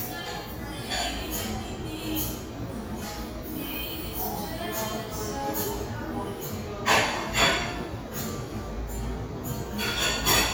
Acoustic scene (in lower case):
cafe